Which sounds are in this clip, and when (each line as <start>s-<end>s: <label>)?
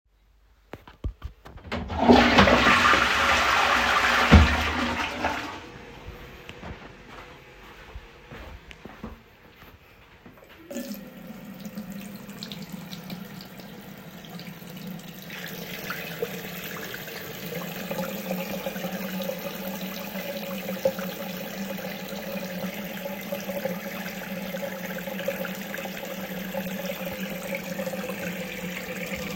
1.6s-5.7s: toilet flushing
6.2s-9.3s: footsteps
10.6s-29.4s: running water